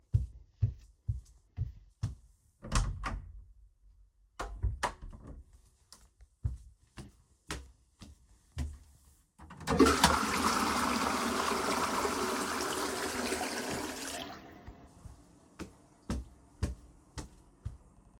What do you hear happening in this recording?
I hold the recording device while walking into the bathroom. I open the door, take a few steps inside, and flush the toilet then walk away.